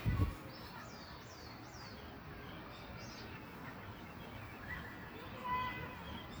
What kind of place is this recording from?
park